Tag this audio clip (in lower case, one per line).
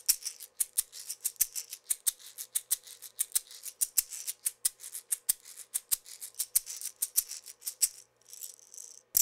percussion
music